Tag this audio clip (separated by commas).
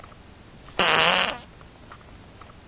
Fart